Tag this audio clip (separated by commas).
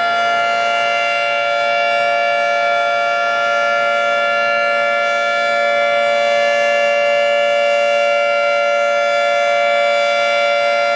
Siren